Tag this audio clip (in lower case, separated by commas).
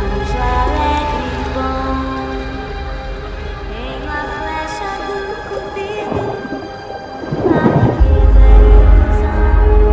whale vocalization, music